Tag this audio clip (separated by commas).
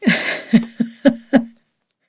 Human voice, Giggle, Laughter